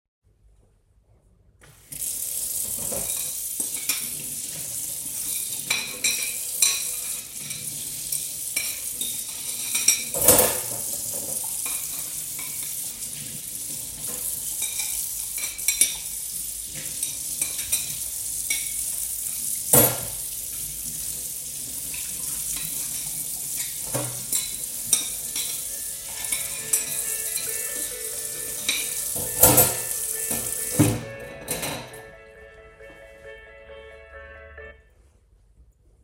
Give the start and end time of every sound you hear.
[1.84, 31.05] running water
[3.01, 4.10] cutlery and dishes
[5.10, 12.84] cutlery and dishes
[14.58, 20.08] cutlery and dishes
[21.96, 32.00] cutlery and dishes
[25.17, 34.87] phone ringing

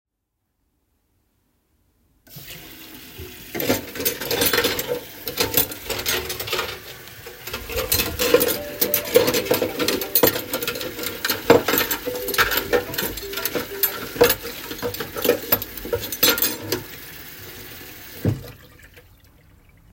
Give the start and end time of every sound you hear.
[2.24, 18.62] running water
[3.45, 16.86] cutlery and dishes
[8.41, 10.47] phone ringing
[11.99, 14.39] phone ringing

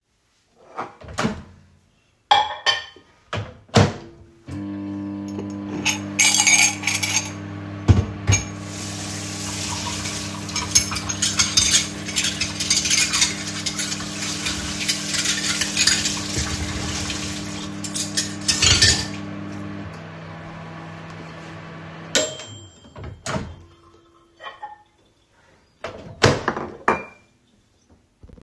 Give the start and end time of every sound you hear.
[1.01, 1.51] microwave
[2.17, 3.10] cutlery and dishes
[3.55, 4.30] microwave
[4.40, 23.69] microwave
[5.73, 7.58] cutlery and dishes
[7.81, 8.60] cutlery and dishes
[8.65, 17.86] running water
[10.52, 19.31] cutlery and dishes
[24.39, 24.89] cutlery and dishes
[25.84, 26.48] microwave
[26.48, 27.32] cutlery and dishes

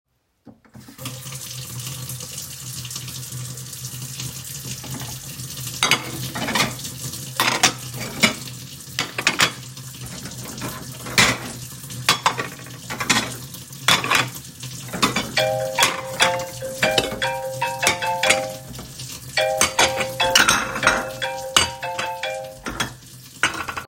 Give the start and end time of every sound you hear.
[0.69, 23.87] running water
[5.58, 23.87] cutlery and dishes
[15.14, 23.10] phone ringing

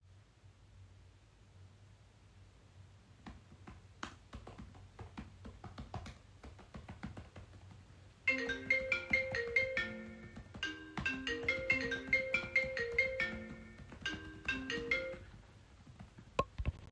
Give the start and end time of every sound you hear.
[3.23, 16.92] keyboard typing
[8.24, 15.32] phone ringing

